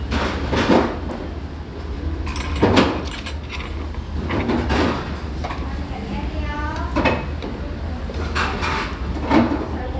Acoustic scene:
restaurant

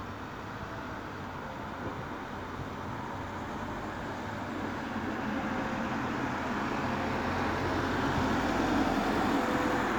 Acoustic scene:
street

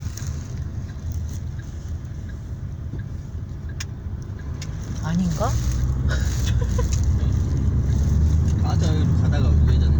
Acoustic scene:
car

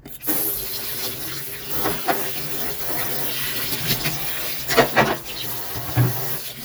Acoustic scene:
kitchen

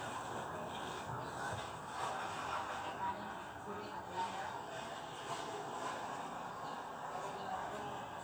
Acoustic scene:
residential area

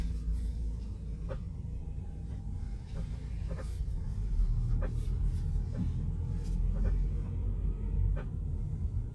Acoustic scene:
car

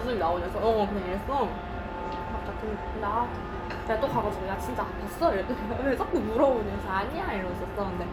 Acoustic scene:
restaurant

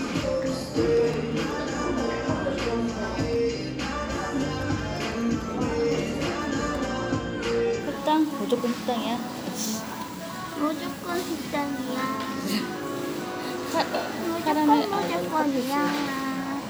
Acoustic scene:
cafe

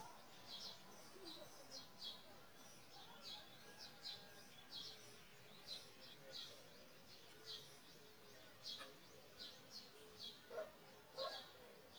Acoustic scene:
park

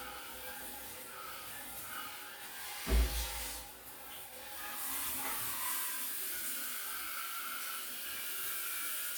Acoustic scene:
restroom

